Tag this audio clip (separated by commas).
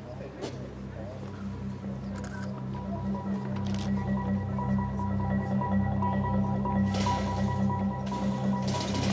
Music, Speech, Orchestra